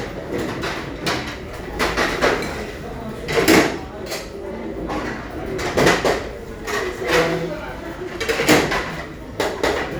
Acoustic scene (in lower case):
restaurant